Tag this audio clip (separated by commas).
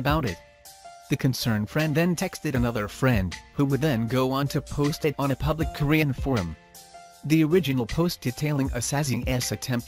Speech, Music